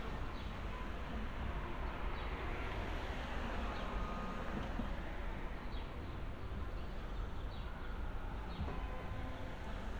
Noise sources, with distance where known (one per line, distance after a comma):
background noise